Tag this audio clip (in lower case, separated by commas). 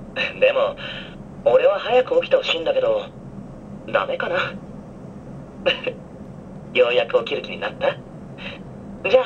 speech